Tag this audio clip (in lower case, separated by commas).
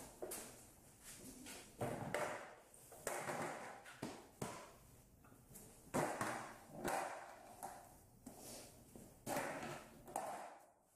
skateboard